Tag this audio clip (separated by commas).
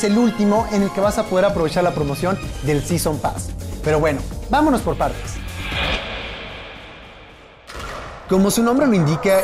Music, Speech